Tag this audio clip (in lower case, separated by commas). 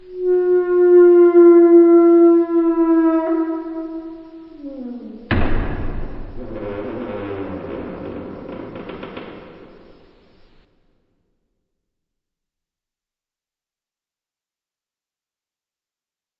thud